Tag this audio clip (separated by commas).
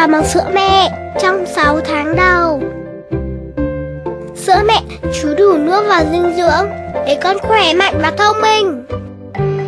Speech, Music